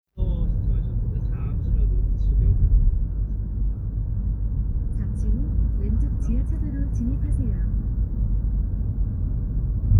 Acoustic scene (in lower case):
car